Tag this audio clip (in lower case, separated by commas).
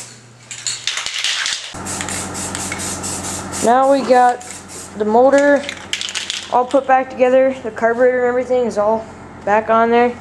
dishes, pots and pans, speech